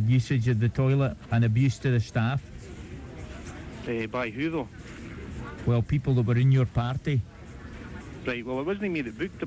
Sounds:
speech
music

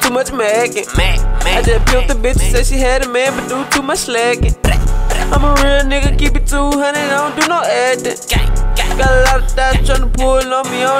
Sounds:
music
jazz

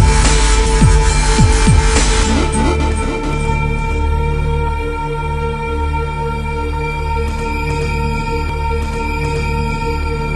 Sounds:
music

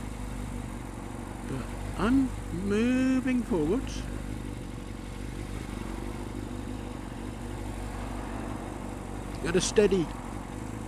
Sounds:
speech

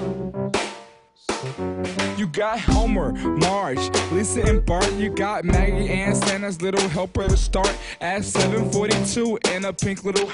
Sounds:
rapping

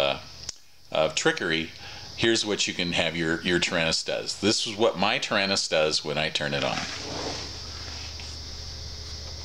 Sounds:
speech

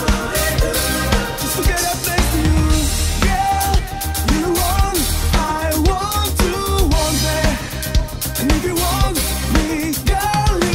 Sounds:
musical instrument
drum
drum kit
cymbal

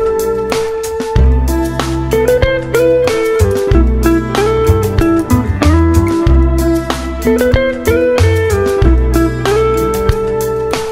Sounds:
music

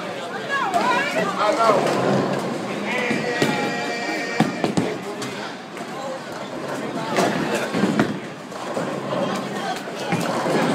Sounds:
striking bowling

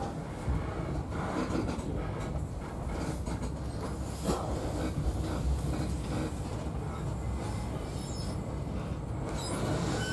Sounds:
vehicle
train

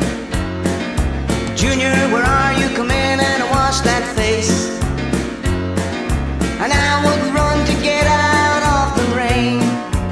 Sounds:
music
country
bluegrass

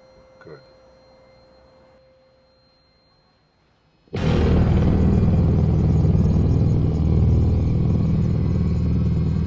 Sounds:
outside, urban or man-made
vehicle
music
speech
rumble

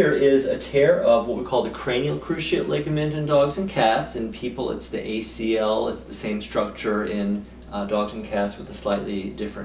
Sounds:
speech

